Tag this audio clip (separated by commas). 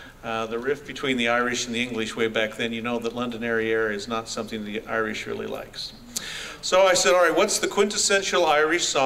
Speech